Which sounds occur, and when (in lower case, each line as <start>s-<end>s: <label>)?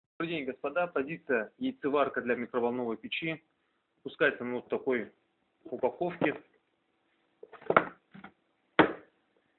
0.2s-1.5s: male speech
0.2s-9.5s: background noise
1.6s-3.4s: male speech
4.0s-5.2s: male speech
5.6s-6.4s: male speech
6.2s-6.6s: generic impact sounds
7.4s-7.9s: generic impact sounds
8.1s-8.3s: generic impact sounds
8.7s-9.0s: tap
9.3s-9.4s: generic impact sounds